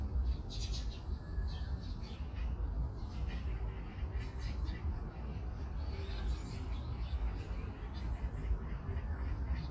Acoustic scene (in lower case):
park